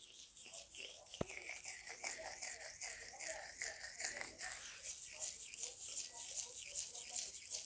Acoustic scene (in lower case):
restroom